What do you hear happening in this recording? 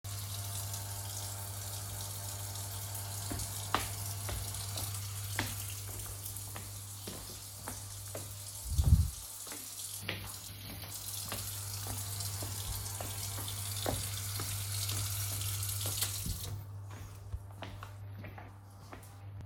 I leave the kitchen, while the water is running and the microwave is on, but I turn back and turn off the tap.